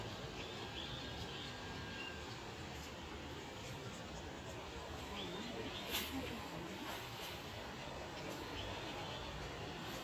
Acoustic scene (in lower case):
park